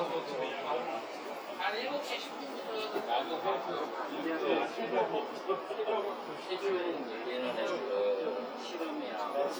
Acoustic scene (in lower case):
crowded indoor space